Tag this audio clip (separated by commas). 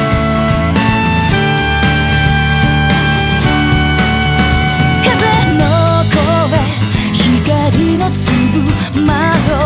Music, Pop music